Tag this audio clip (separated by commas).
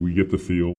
Speech, Male speech, Human voice